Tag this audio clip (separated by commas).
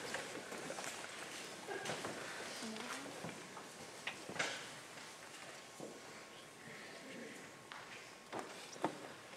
Rustling leaves